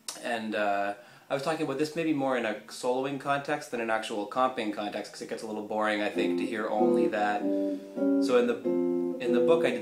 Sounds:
musical instrument
plucked string instrument
guitar
music
speech

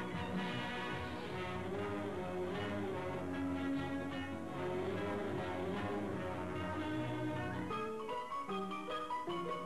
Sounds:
music

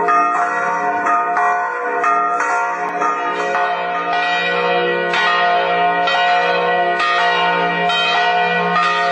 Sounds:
change ringing (campanology)

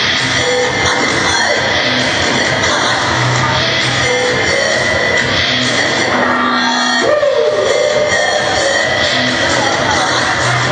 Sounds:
music
speech
hiss

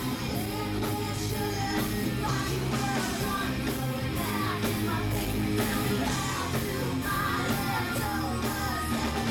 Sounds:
music

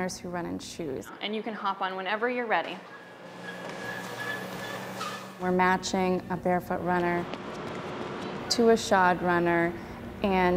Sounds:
speech
inside a large room or hall
run

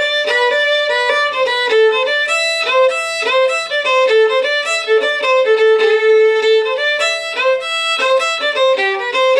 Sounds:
musical instrument
music
fiddle

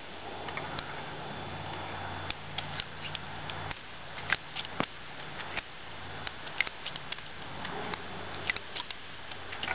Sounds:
outside, rural or natural

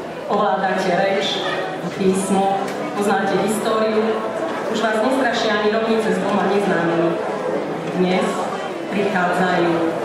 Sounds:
narration
woman speaking
speech

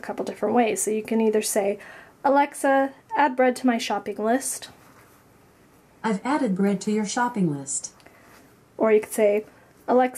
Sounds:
speech

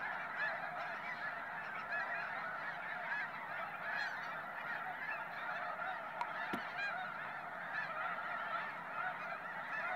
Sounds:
honk
goose honking

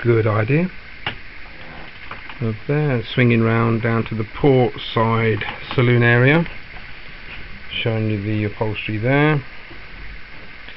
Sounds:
speech

